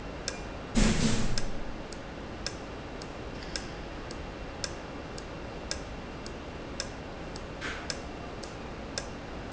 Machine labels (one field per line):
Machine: valve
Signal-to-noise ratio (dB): -6 dB